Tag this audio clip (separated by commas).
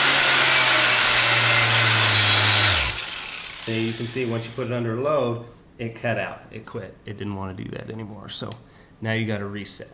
Tools, Power tool